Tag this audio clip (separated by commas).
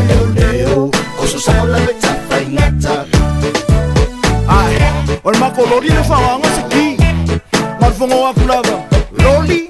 Afrobeat, Music of Africa, Music